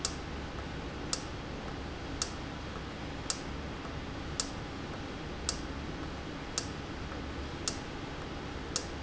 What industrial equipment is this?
valve